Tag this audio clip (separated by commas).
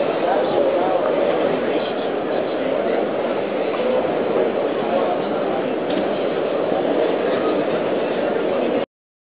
Speech